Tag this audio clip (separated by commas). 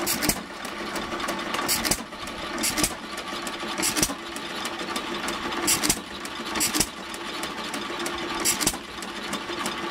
Engine